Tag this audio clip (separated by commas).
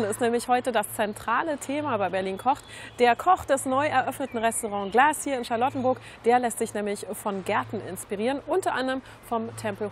Speech